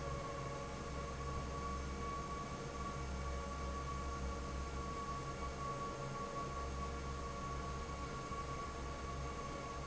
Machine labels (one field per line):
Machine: fan